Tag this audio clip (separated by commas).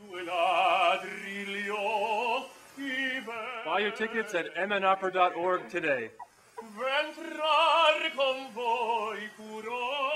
Speech